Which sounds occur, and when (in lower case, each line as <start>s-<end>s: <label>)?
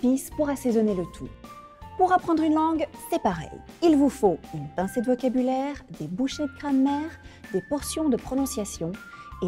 0.0s-1.3s: woman speaking
0.0s-9.4s: music
2.0s-2.8s: woman speaking
3.1s-3.4s: woman speaking
3.8s-4.3s: woman speaking
4.5s-5.8s: woman speaking
5.9s-7.1s: woman speaking
7.2s-7.4s: breathing
7.4s-9.0s: woman speaking
8.9s-9.3s: breathing